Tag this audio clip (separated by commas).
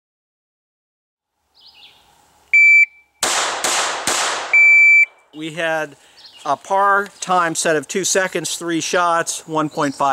Speech, outside, rural or natural